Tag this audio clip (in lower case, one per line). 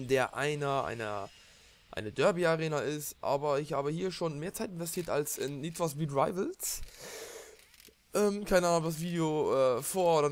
speech